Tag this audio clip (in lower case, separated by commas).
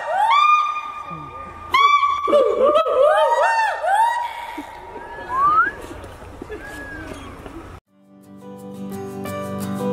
gibbon howling